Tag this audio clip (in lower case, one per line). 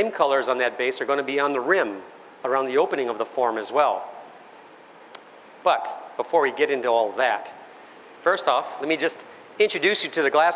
speech